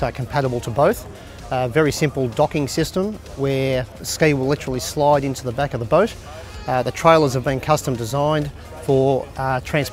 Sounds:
music, speech

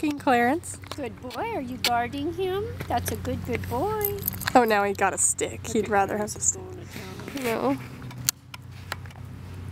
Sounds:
speech

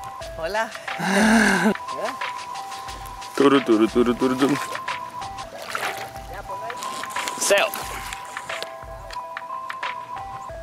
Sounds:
speech, music

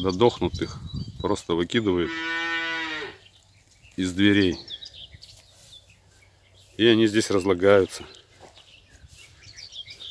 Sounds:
cattle mooing

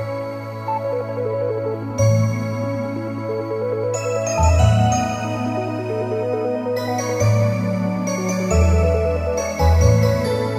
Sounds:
music

